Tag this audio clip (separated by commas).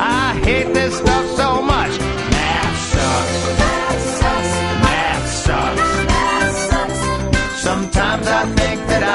Music